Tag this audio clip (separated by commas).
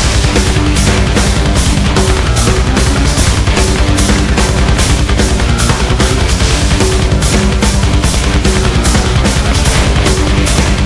Music